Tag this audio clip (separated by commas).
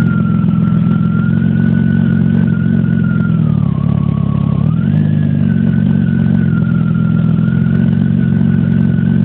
Car, vroom, Vehicle